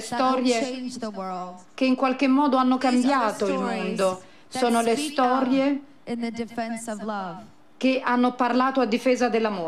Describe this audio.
Woman speaking in foreign language